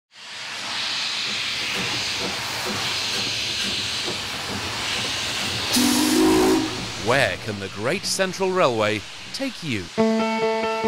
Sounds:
Hiss

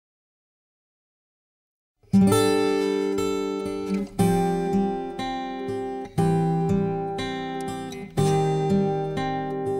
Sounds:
Music, Acoustic guitar

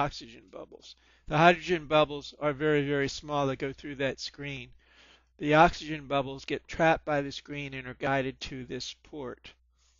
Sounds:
Speech

